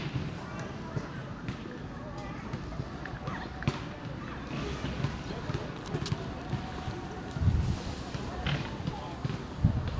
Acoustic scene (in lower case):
residential area